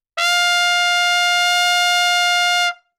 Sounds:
musical instrument, brass instrument, music, trumpet

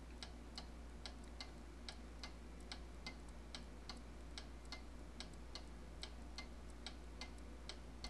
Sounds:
mechanisms, clock

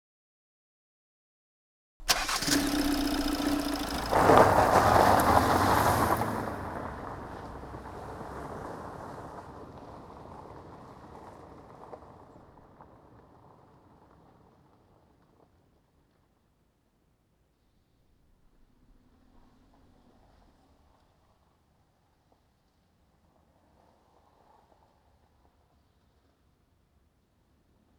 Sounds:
engine starting, engine

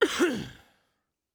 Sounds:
cough, respiratory sounds

